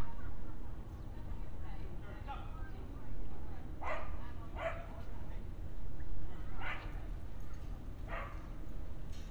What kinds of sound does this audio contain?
person or small group talking, dog barking or whining